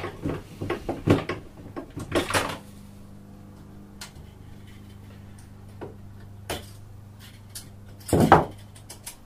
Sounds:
tools
wood

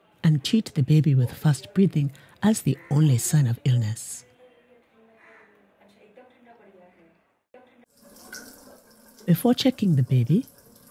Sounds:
speech

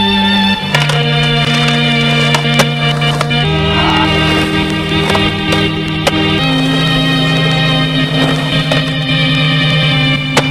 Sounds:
skateboard

